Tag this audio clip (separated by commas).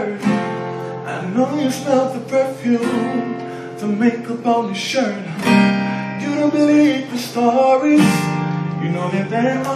Music